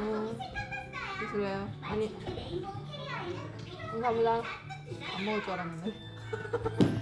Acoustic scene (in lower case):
crowded indoor space